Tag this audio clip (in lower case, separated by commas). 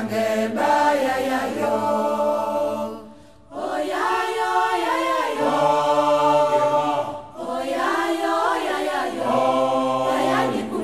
mantra